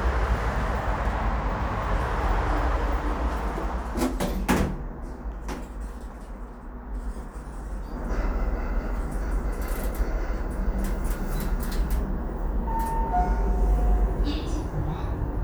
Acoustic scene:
elevator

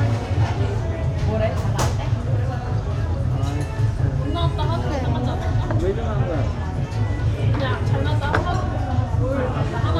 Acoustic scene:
restaurant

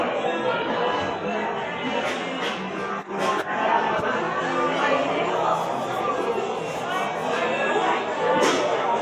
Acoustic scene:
cafe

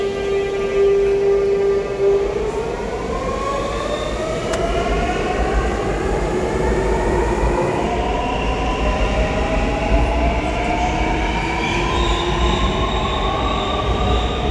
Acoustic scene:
subway station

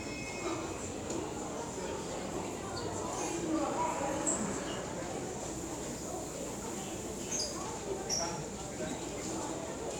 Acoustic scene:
subway station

